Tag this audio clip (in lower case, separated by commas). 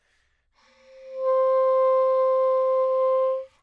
musical instrument, music, wind instrument